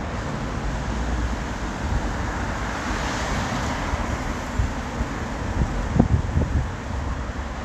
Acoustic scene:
street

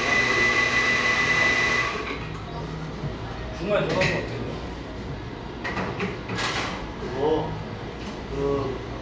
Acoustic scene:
cafe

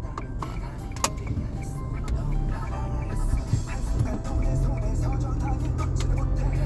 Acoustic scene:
car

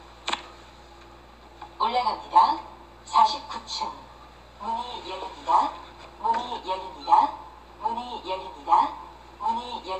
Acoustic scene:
elevator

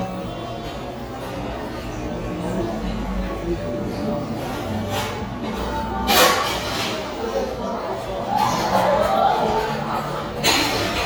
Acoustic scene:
cafe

